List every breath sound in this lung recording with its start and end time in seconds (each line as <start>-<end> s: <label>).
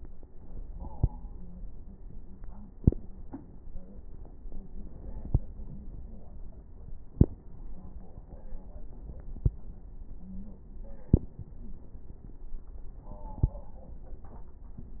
10.18-10.68 s: wheeze